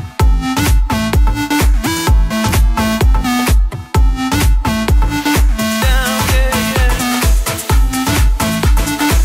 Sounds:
Music

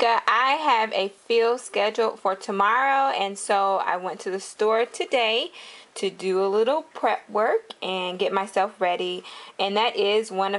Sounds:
Speech

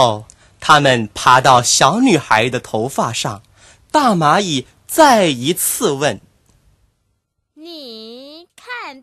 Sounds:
Speech, Speech synthesizer

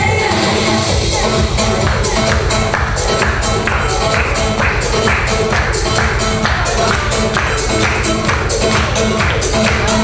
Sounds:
Music, Speech

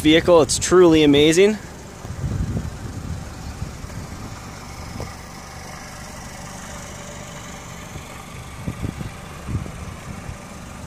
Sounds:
Car, Vehicle, Speech

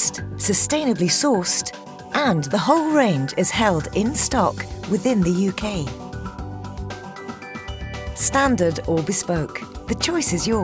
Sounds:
Music, Speech

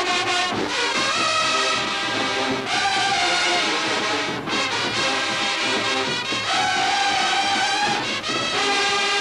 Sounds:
Music

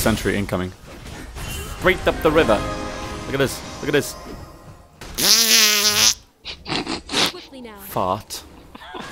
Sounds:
Speech, Music

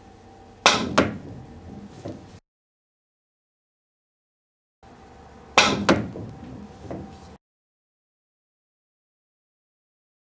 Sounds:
striking pool

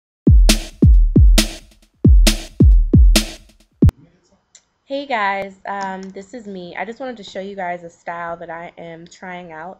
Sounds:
Music, Drum machine, Speech

